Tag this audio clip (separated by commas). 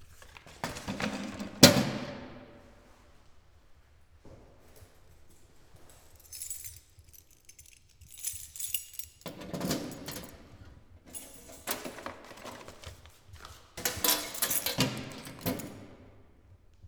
home sounds, Keys jangling